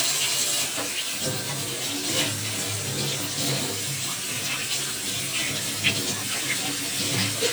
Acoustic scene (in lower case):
kitchen